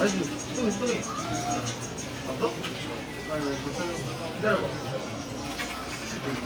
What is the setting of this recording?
crowded indoor space